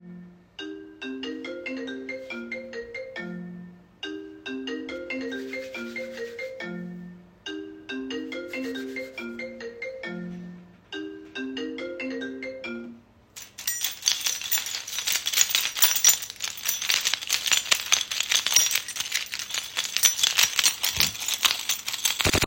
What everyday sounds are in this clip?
phone ringing, keys